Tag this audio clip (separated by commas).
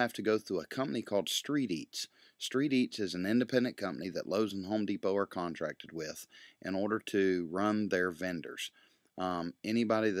Speech